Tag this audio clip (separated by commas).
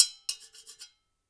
dishes, pots and pans, home sounds